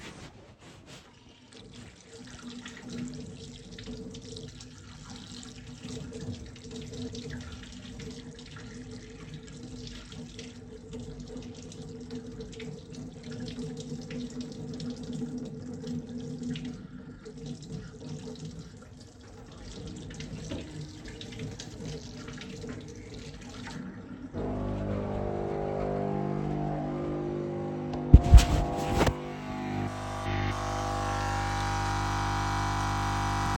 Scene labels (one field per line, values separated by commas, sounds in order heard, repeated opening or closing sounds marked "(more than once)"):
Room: kitchen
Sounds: running water, coffee machine